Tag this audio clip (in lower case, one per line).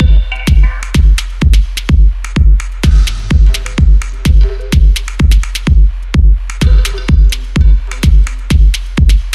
music